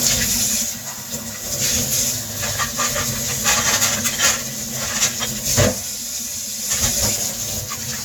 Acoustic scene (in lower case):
kitchen